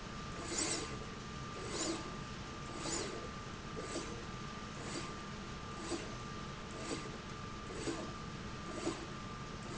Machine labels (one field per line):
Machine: slide rail